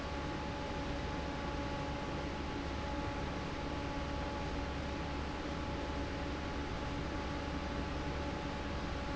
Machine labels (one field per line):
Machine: fan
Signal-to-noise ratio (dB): -6 dB